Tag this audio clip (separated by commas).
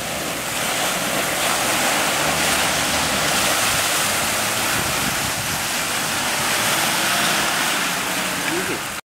Speech, Ocean